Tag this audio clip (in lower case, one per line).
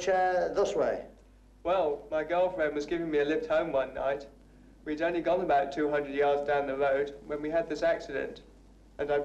speech